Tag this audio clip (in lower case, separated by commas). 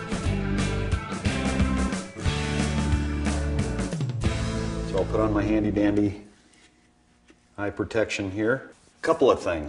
music, speech